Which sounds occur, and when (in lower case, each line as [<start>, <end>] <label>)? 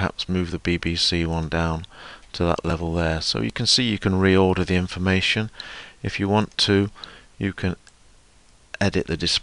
[0.00, 9.42] background noise
[6.95, 7.26] breathing
[8.13, 8.23] clicking
[8.76, 9.42] man speaking